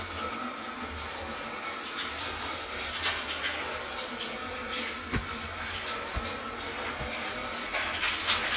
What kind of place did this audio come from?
restroom